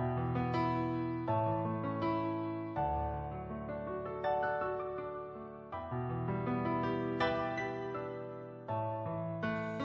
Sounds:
music

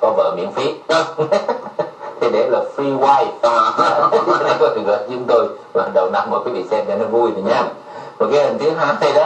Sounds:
speech

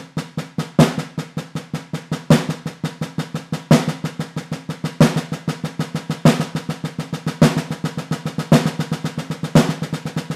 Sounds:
drum roll
music

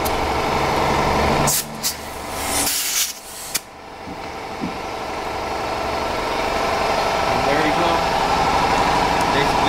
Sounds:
speech

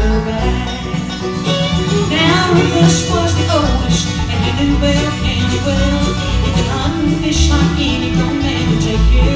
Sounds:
music

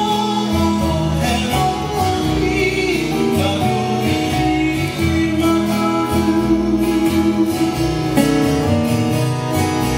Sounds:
music of latin america

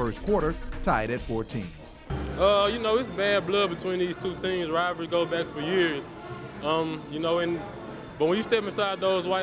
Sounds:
music
speech
inside a large room or hall

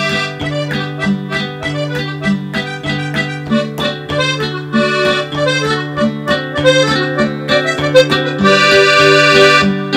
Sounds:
playing accordion

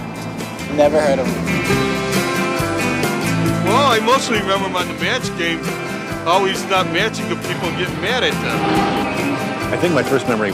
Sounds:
speech
music

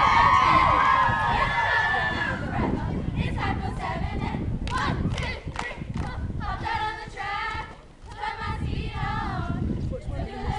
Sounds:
speech

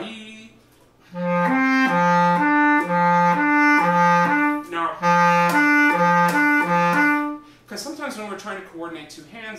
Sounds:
playing clarinet

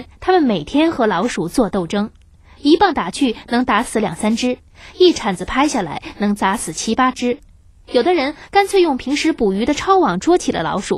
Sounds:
speech

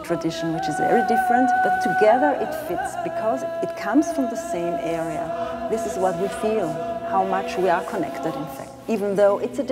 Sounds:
music
speech

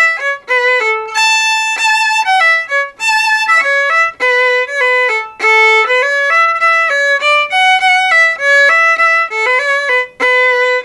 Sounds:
bowed string instrument
fiddle

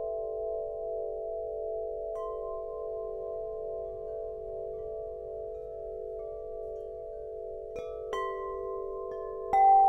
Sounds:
wind chime

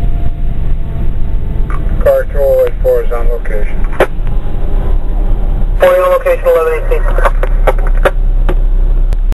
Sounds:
car passing by
speech
car
motor vehicle (road)
vehicle

